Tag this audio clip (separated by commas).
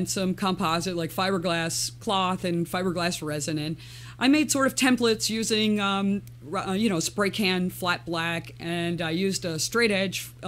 Speech